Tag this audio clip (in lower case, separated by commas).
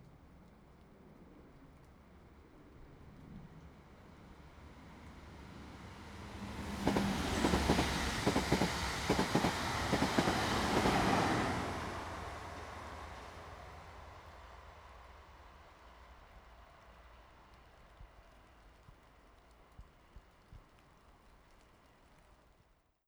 vehicle, rail transport, train